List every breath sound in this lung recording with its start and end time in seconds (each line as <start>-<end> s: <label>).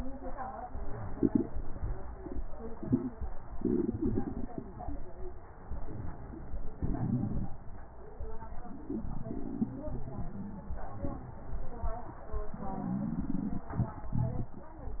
5.64-6.79 s: inhalation